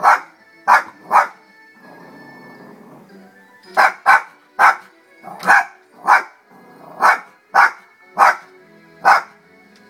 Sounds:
animal, dog, domestic animals, music, bow-wow

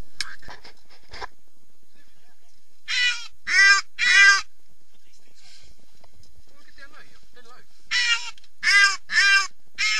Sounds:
speech, duck

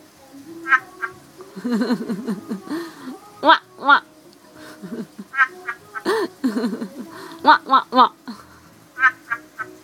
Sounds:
frog

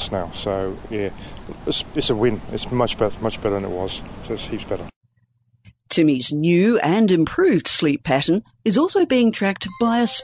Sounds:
speech

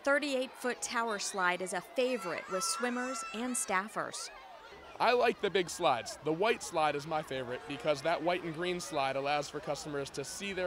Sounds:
speech

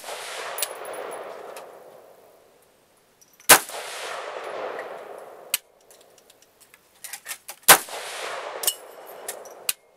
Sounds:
machine gun, machine gun shooting

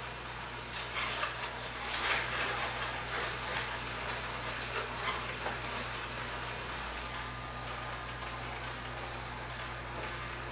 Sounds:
blender

